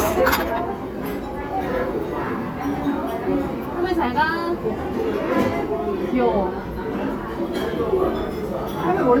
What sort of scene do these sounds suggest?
crowded indoor space